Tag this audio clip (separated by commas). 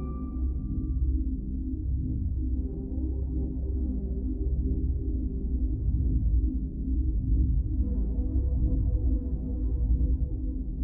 Music